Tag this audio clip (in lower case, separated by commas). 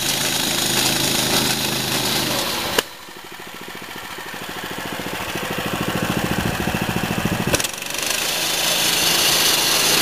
lawn mower